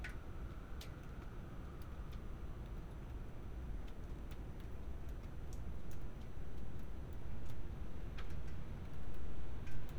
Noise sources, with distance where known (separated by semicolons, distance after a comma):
non-machinery impact, near